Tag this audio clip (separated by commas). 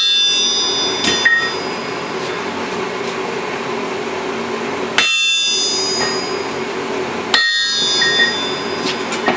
Hammer